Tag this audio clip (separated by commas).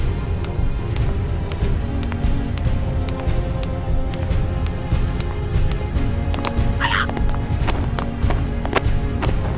Music